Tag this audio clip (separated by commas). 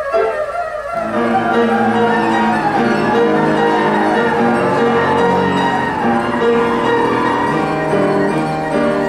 playing erhu